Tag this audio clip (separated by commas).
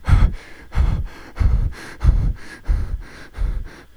Respiratory sounds, Breathing